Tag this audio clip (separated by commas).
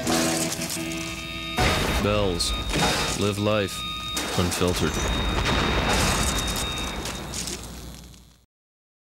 Speech